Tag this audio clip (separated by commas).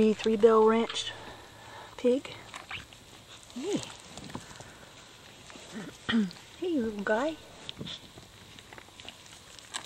Patter, mouse pattering